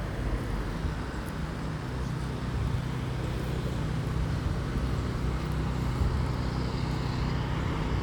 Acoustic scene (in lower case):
residential area